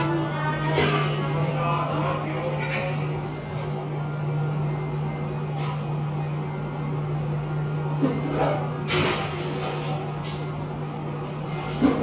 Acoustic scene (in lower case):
cafe